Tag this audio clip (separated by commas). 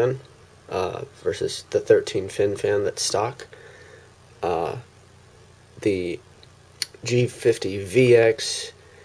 Speech